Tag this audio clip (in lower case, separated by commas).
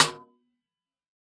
percussion, music, musical instrument, drum, snare drum